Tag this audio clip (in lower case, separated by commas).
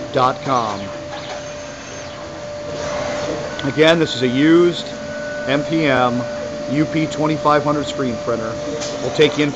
speech, printer